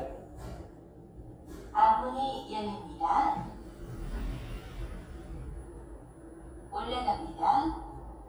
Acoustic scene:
elevator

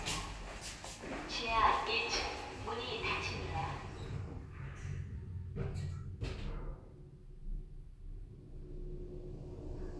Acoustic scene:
elevator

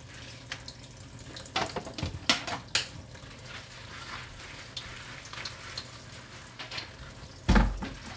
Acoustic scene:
kitchen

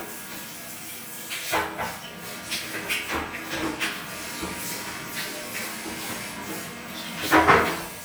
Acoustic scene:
restroom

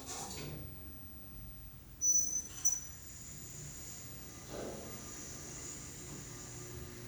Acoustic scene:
elevator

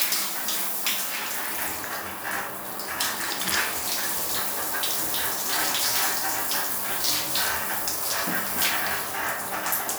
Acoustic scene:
restroom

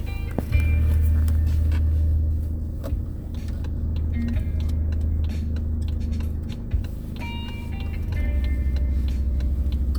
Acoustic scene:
car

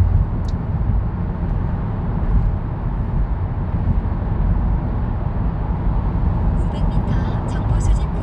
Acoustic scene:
car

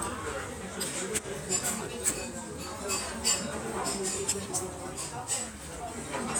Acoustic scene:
restaurant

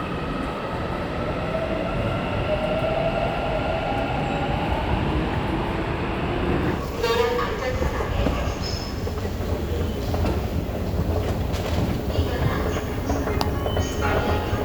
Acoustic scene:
subway station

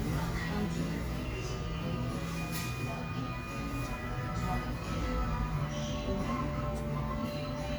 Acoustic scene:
cafe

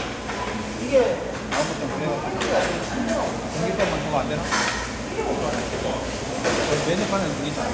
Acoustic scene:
restaurant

